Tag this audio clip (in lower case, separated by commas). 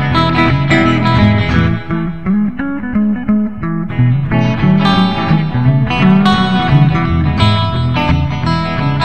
music, psychedelic rock, guitar, electric guitar, musical instrument